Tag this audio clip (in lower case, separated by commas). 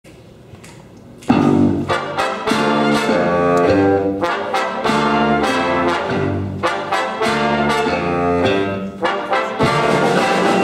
music, brass instrument, musical instrument, orchestra, trumpet, inside a large room or hall